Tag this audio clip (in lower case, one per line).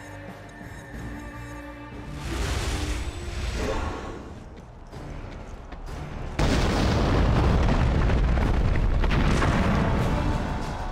music